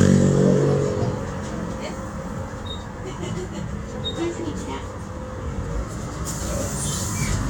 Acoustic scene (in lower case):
bus